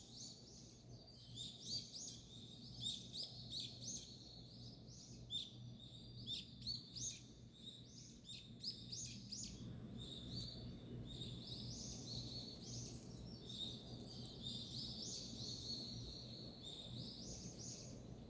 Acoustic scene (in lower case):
park